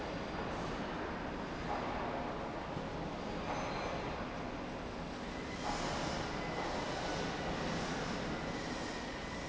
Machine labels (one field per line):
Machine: slide rail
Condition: normal